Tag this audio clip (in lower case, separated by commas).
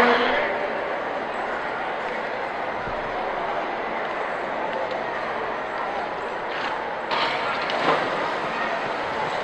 horse, speech